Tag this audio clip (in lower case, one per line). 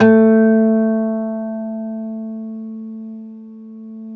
guitar
musical instrument
plucked string instrument
acoustic guitar
music